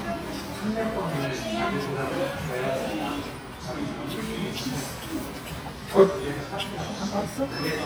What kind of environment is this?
crowded indoor space